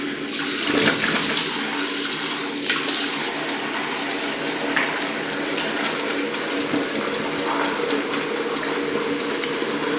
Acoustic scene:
restroom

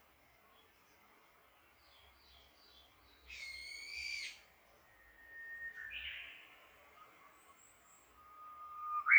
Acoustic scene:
park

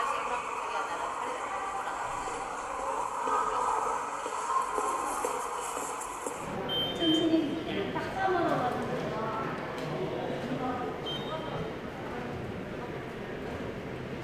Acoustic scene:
subway station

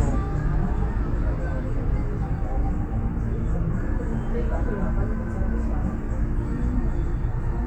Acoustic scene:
bus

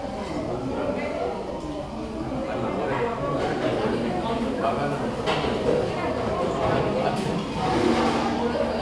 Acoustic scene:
crowded indoor space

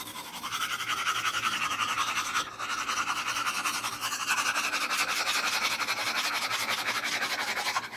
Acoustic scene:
restroom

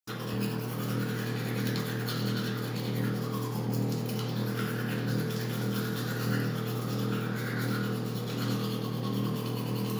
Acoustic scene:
restroom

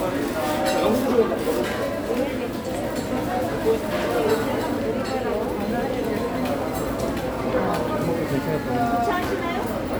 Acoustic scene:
crowded indoor space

